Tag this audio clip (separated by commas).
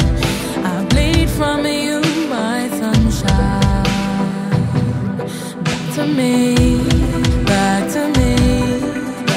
Music, Funk